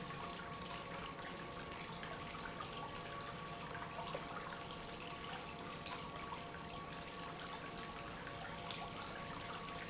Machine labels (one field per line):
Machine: pump